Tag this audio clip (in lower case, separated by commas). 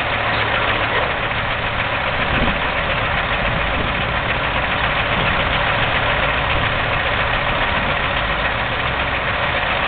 vehicle, truck